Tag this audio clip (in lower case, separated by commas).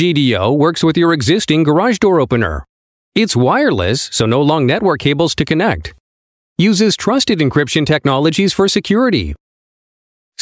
speech